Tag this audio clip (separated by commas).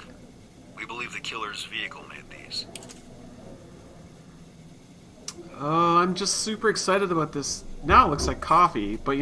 Speech, inside a small room